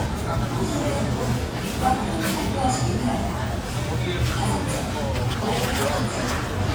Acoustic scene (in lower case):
crowded indoor space